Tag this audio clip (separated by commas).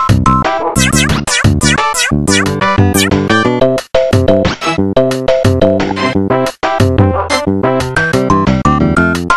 Music